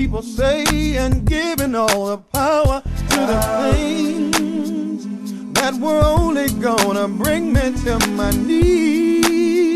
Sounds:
music

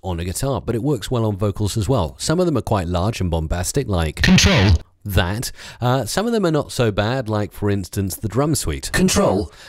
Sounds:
speech

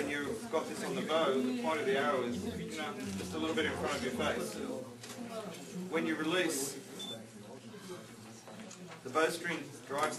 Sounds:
speech

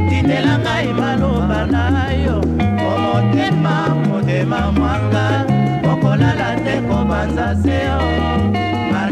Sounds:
salsa music
music

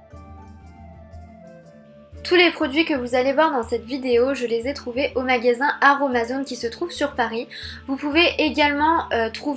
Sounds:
speech
music

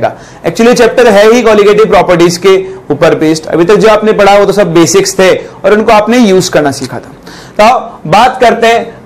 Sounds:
speech

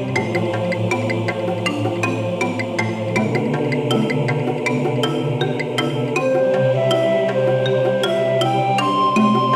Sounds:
music

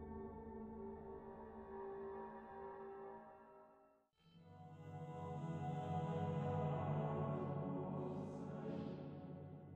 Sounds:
music

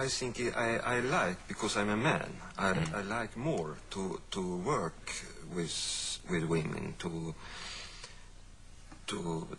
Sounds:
speech

